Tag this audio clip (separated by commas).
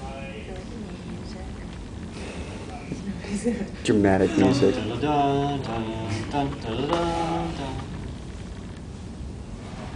Speech